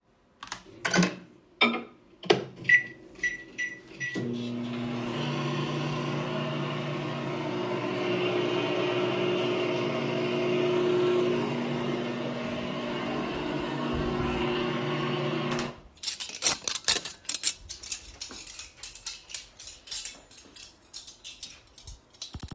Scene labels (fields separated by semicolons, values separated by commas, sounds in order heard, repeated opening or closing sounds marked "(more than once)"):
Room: kitchen; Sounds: microwave, cutlery and dishes